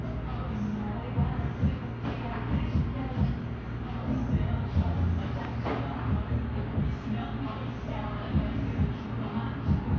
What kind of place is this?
cafe